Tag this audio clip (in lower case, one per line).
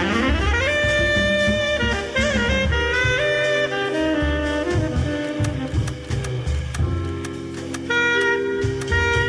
music